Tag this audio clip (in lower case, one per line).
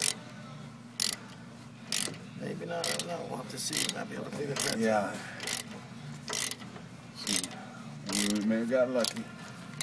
speech